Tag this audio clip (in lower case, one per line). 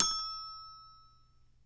music
marimba
musical instrument
mallet percussion
percussion